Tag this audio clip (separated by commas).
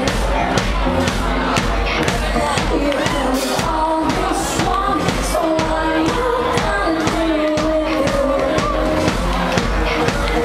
Music